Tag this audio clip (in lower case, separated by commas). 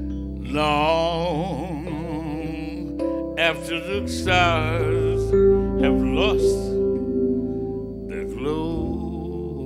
music, singing